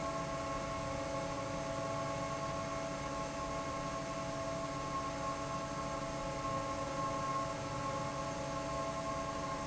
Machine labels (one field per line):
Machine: fan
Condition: normal